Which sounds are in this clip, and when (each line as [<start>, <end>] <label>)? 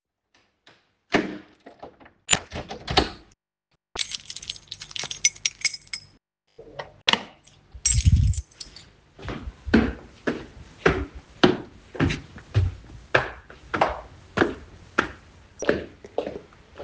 [1.07, 1.54] door
[2.17, 3.32] door
[3.90, 6.07] keys
[7.04, 7.34] door
[7.77, 8.85] keys
[9.19, 16.83] footsteps